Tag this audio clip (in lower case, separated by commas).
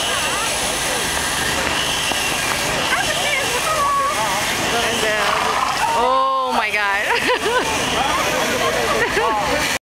engine, speech